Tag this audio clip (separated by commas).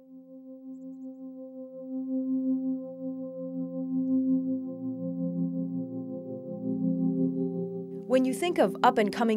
Music, Speech